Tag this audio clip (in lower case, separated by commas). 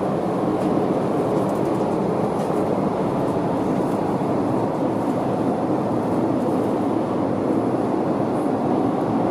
airplane, aircraft, vehicle